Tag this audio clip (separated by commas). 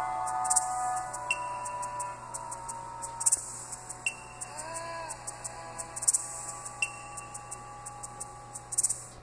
Television, Music